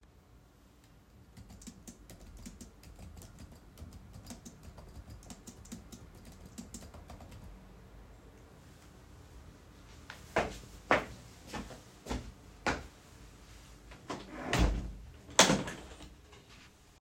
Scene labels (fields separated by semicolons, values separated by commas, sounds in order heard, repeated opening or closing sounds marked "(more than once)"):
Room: bedroom; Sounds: keyboard typing, footsteps, window